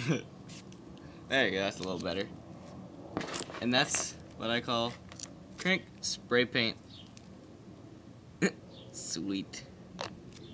A man is talking and spraying spray paint briefly